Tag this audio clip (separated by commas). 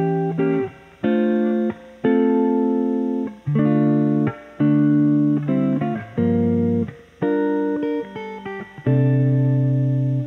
Strum, Music, Plucked string instrument, playing electric guitar, Electric guitar, Guitar, Musical instrument